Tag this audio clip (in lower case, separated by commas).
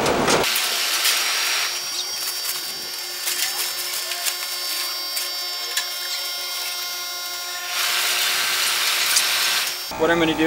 speech